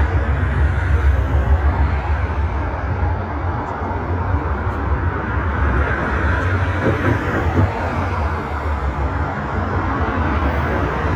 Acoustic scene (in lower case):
street